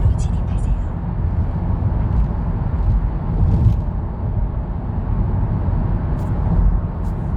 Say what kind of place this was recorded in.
car